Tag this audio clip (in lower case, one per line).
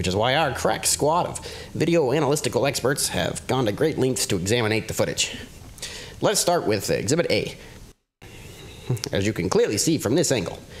speech